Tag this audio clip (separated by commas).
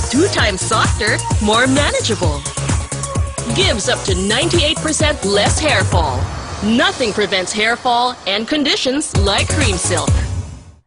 Music, Speech